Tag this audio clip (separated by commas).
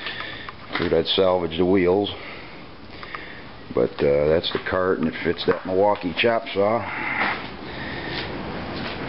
Speech